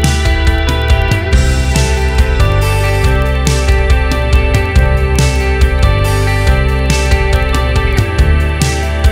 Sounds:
Music

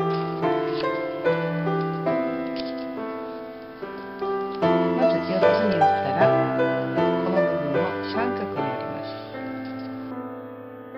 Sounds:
Speech, Music

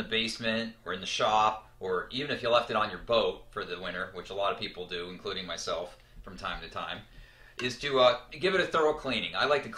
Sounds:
Speech

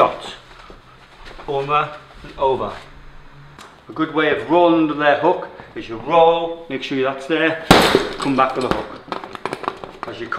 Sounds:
gunfire

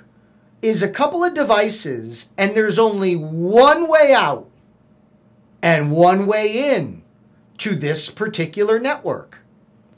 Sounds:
Speech

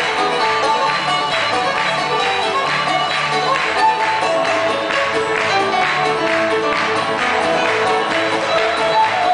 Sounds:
Music

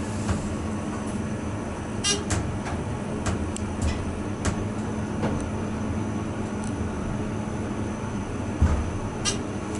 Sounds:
inside a small room

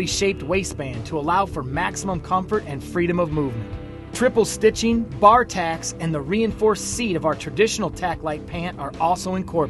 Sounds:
Music, Speech

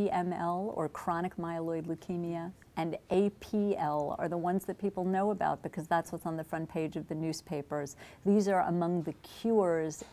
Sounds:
Speech, inside a small room

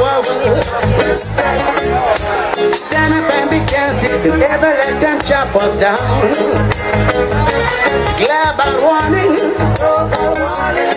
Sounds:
Crowd, Reggae, Afrobeat, Music

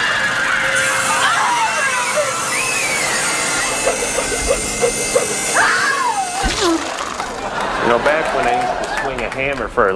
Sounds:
Speech, inside a large room or hall

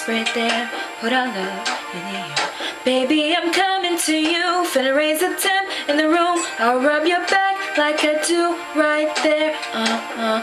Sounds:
Music, Female singing

